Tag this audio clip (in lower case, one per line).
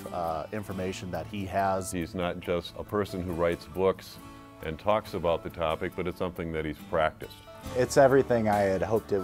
music
speech